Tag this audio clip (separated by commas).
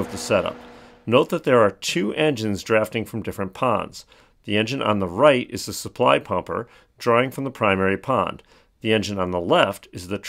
Speech